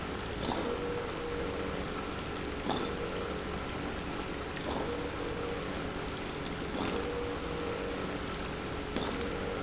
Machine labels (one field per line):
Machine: pump